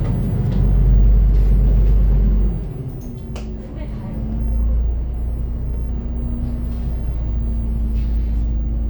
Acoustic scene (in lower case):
bus